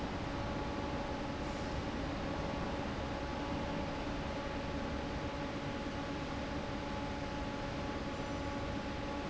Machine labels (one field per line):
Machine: fan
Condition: normal